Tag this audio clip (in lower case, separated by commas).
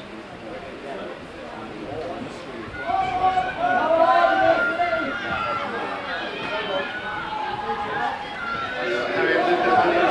speech